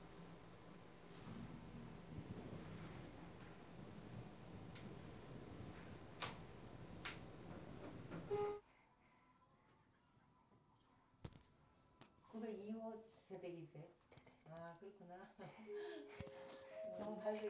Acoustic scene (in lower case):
elevator